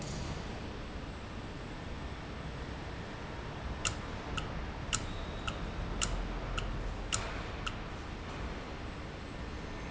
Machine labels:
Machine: valve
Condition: normal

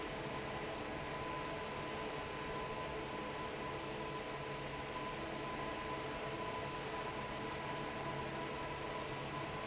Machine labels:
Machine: fan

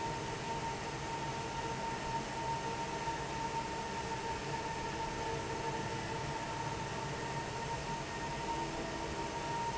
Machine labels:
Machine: fan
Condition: normal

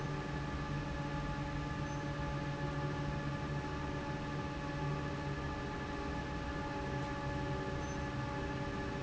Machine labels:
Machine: fan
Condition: normal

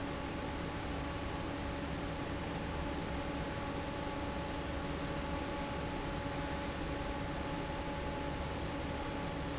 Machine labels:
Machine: fan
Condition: normal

